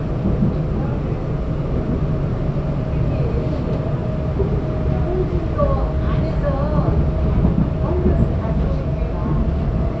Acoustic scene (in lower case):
subway train